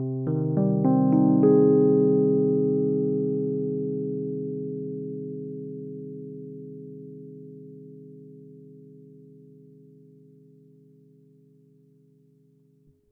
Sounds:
keyboard (musical), piano, musical instrument, music

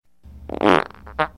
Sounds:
fart

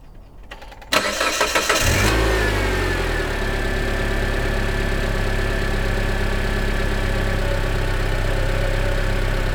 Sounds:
engine

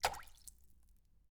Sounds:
liquid, water, splatter, raindrop, rain

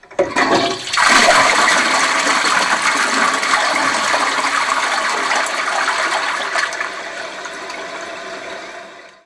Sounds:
home sounds, toilet flush

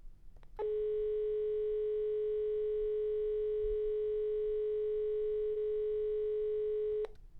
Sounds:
alarm, telephone

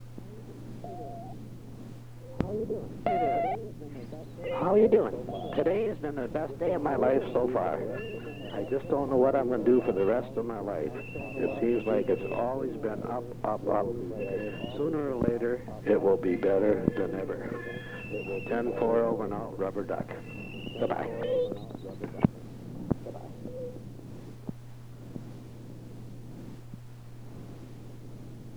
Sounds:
alarm, telephone

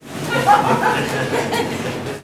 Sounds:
laughter, human voice

